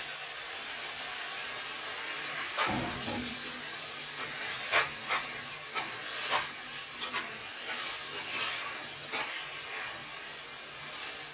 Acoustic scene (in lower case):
kitchen